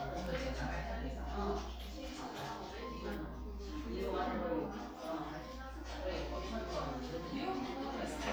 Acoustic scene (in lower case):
crowded indoor space